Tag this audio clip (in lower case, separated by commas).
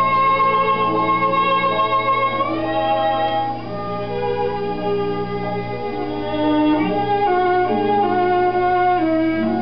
bowed string instrument, fiddle